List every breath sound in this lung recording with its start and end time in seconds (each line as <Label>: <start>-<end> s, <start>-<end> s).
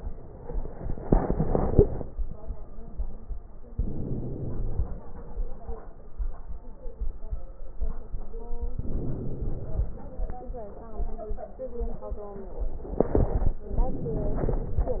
Inhalation: 3.72-4.97 s, 8.79-10.03 s, 13.76-15.00 s